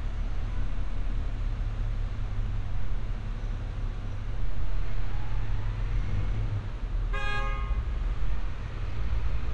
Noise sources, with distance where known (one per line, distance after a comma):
car horn, near